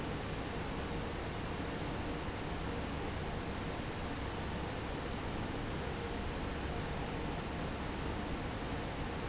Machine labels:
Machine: fan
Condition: normal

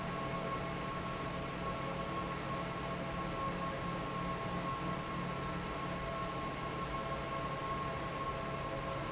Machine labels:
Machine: fan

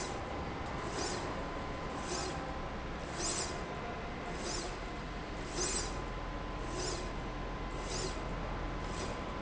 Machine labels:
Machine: slide rail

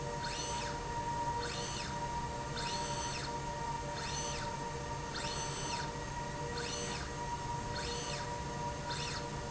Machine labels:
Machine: slide rail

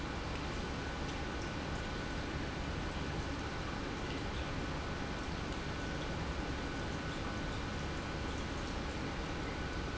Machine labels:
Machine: pump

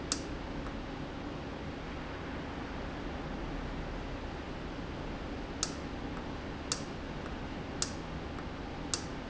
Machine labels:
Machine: valve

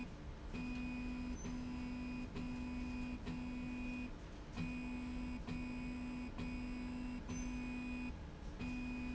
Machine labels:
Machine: slide rail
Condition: normal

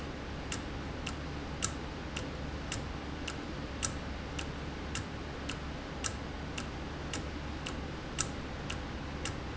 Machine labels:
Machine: valve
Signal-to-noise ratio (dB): -6 dB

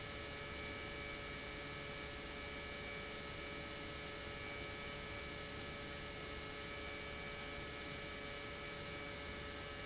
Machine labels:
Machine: pump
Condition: normal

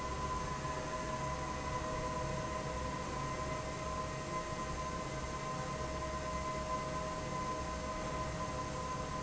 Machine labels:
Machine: fan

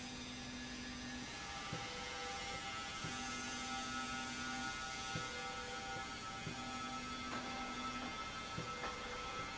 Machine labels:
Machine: slide rail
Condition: normal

